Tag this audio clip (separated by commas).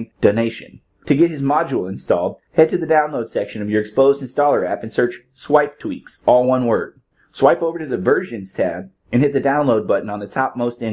Speech